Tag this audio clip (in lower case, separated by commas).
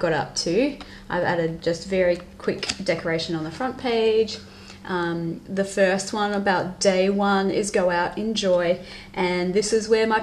speech